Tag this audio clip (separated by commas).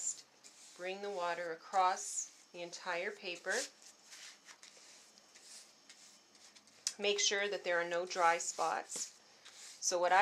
Speech